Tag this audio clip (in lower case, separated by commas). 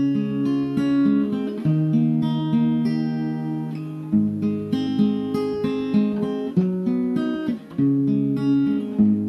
musical instrument, guitar, music, strum, acoustic guitar, plucked string instrument